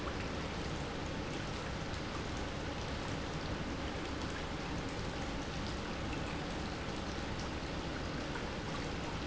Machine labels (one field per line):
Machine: pump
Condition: normal